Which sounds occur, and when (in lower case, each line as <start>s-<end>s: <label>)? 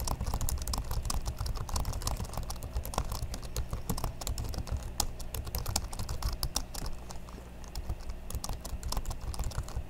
0.0s-7.4s: computer keyboard
0.0s-9.8s: mechanisms
7.6s-9.8s: computer keyboard